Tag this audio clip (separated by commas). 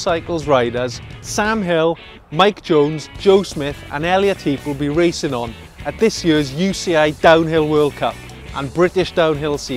Speech, Music